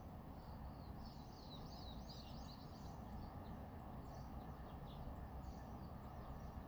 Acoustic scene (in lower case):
residential area